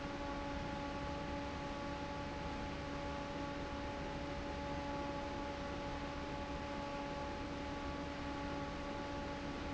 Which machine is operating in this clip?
fan